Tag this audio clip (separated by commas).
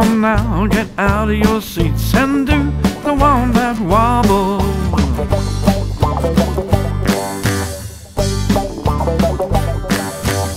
Music